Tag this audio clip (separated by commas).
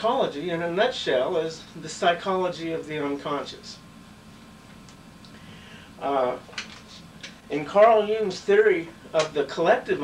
Speech